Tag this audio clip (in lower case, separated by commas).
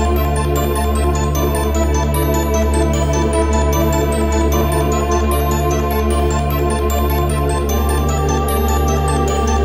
tick-tock, music